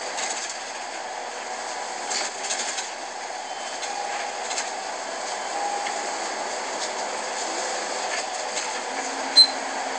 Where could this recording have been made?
on a bus